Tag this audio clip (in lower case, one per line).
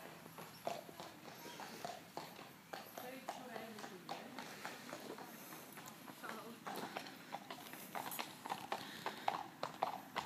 horse clip-clop